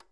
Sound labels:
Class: switch; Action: being turned on; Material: plastic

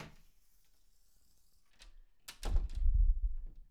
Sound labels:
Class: door; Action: closing; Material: wooden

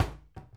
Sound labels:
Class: cupboard; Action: closing; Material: wooden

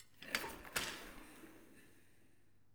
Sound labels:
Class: furniture moving; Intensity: high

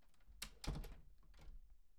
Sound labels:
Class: door; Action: closing; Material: wooden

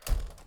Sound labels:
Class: window; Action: closing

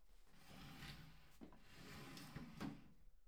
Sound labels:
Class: furniture moving; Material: wooden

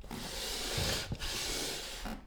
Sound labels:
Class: furniture moving; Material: wooden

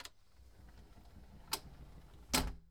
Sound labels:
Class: window; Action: closing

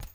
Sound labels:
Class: object falling; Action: being thrown; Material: synthetic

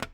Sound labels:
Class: object falling; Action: being thrown; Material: plastic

